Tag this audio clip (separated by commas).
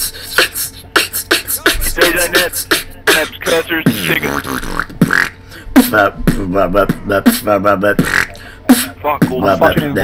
Beatboxing